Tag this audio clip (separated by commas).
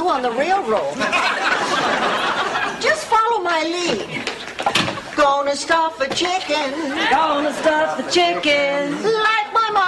Speech